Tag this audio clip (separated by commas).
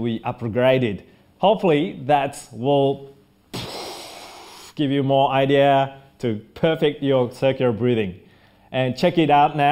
Speech